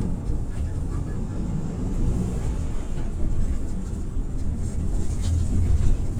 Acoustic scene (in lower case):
bus